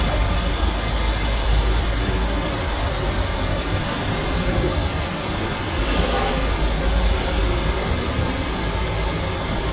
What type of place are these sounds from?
street